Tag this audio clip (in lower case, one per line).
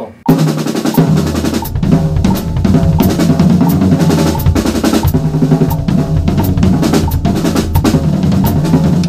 drum
music